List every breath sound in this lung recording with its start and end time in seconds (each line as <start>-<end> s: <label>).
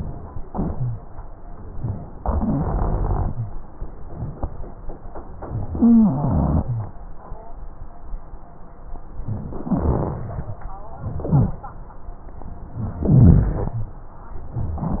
2.16-3.32 s: inhalation
2.33-3.49 s: rhonchi
5.75-6.62 s: wheeze
5.96-6.66 s: inhalation
9.58-10.28 s: inhalation
9.58-10.28 s: rhonchi
11.03-11.63 s: inhalation
11.03-11.63 s: rhonchi
13.02-13.79 s: inhalation
13.02-13.79 s: rhonchi